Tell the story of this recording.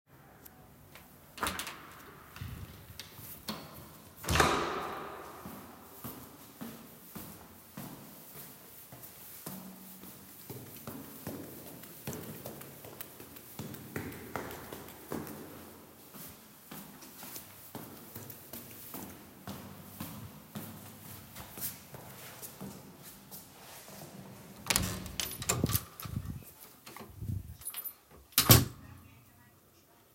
I opened the main door of the building and close it, walked few steps, took the stairs, walked to my department, took my shoes of and opened the door and get then closed the door.